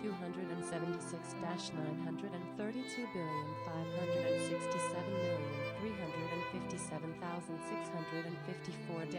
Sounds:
fiddle
bowed string instrument

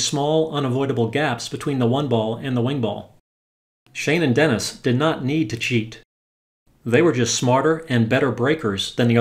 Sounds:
striking pool

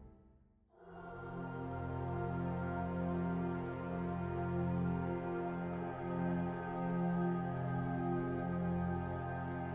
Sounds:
music
ambient music

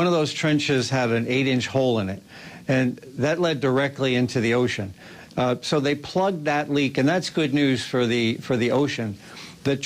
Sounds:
speech

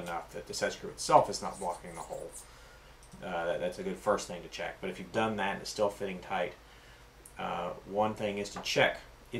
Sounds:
speech

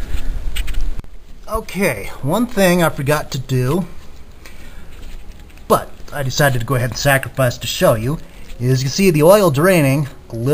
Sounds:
inside a large room or hall
speech

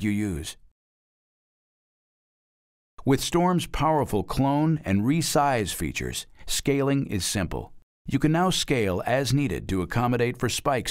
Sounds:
speech

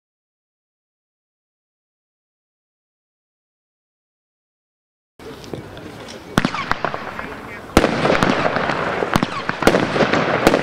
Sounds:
fireworks
speech

